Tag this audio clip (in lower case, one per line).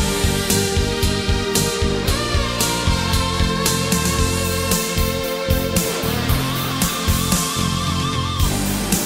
music